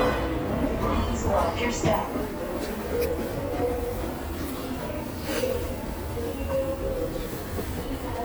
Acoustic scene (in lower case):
subway station